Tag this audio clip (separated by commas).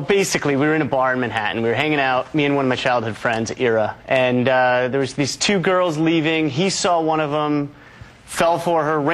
Speech